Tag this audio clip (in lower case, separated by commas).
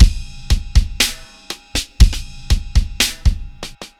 drum, drum kit, musical instrument, music, percussion